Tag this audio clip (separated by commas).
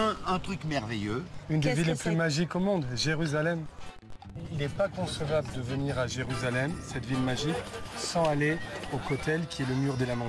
Music, Speech